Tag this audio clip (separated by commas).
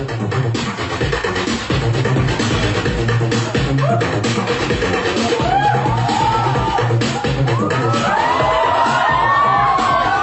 Music